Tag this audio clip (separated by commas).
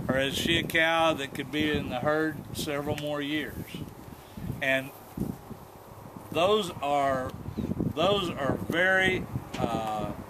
Animal, Speech